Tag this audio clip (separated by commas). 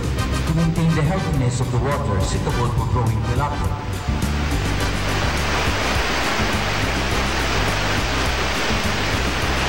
Waterfall